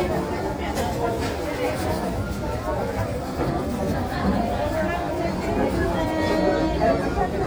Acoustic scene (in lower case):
crowded indoor space